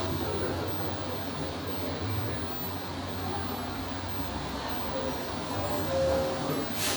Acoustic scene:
cafe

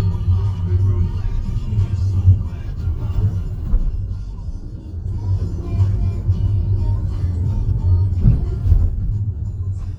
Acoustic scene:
car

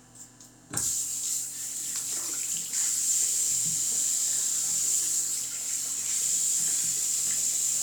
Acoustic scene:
restroom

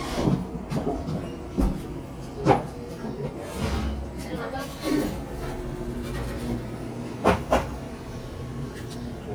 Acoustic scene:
cafe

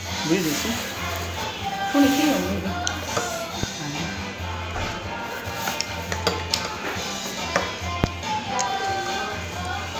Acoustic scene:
restaurant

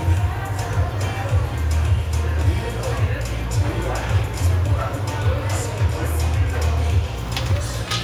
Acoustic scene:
cafe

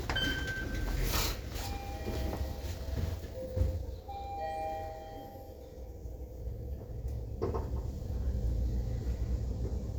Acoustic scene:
elevator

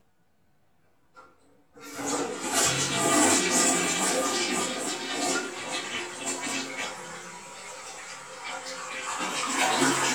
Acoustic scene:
restroom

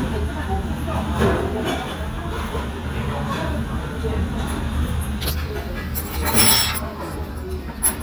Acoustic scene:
restaurant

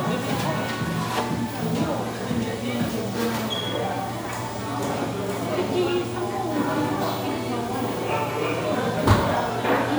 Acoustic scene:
crowded indoor space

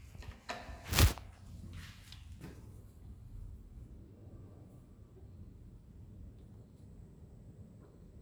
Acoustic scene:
elevator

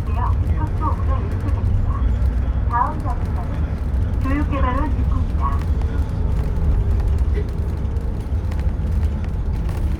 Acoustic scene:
bus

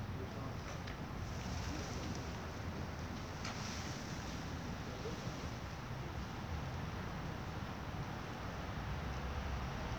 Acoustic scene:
residential area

